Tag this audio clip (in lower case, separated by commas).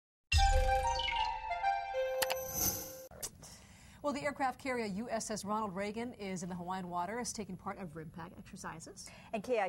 music, speech, inside a small room